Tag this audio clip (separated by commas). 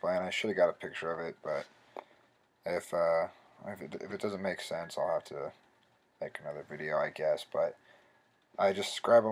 Speech